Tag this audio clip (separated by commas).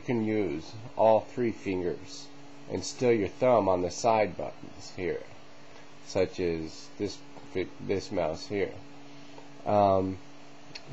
Speech